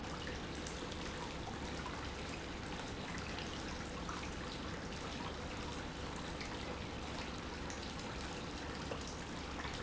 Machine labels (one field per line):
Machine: pump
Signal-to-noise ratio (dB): 0 dB